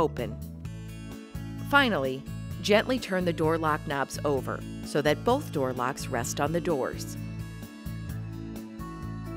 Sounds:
music
speech

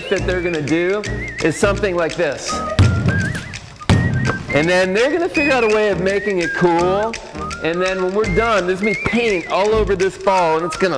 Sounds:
speech
music
basketball bounce

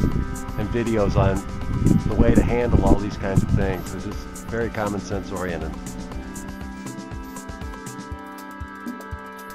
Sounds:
music
speech

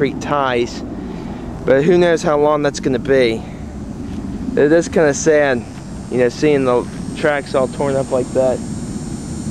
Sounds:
speech
outside, rural or natural

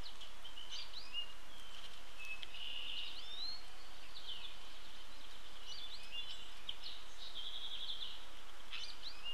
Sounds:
baltimore oriole calling

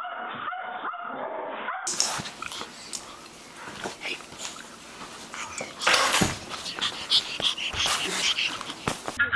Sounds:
cat growling

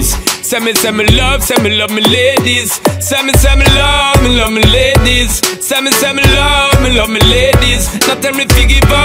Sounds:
music

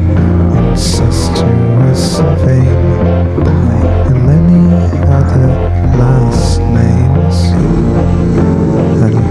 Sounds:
inside a large room or hall
music

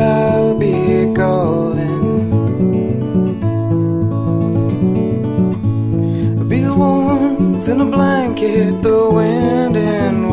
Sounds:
music

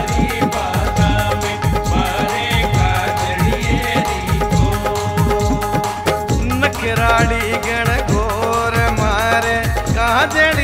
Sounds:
song
music
singing
folk music

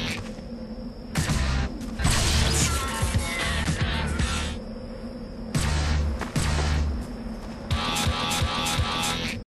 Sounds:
sound effect

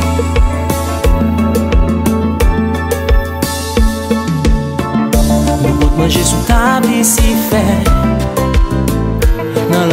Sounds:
music

